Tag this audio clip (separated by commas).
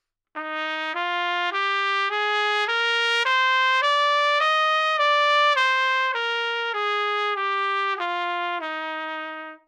Trumpet, Brass instrument, Musical instrument, Music